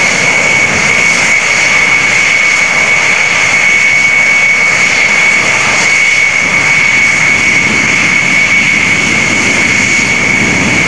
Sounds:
vehicle
aircraft
aircraft engine

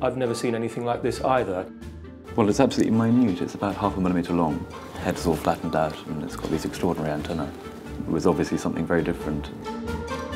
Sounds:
speech
music

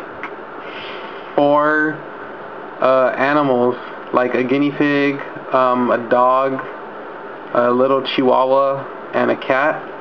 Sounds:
speech

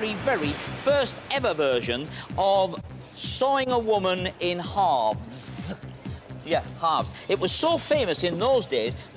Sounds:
music
speech

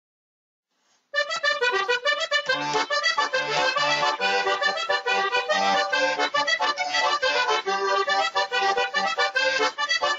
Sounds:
accordion
playing accordion
musical instrument
music

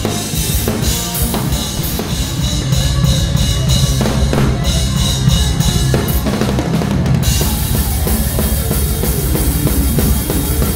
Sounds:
music

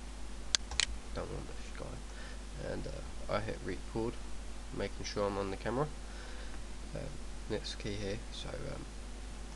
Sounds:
speech

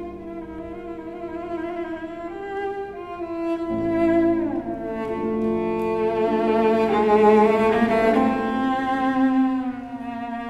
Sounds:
playing cello

